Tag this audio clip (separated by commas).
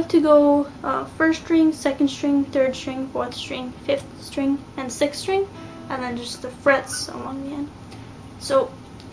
Speech, Guitar, Musical instrument, Music, Plucked string instrument, Strum